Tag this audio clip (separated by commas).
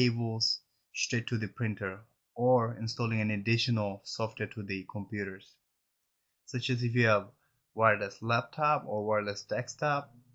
Speech